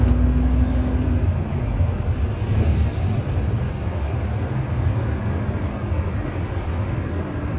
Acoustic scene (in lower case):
bus